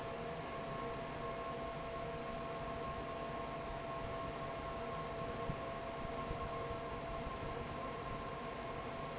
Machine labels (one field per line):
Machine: fan